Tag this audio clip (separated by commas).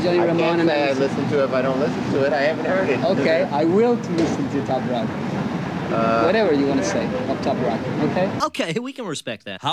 Speech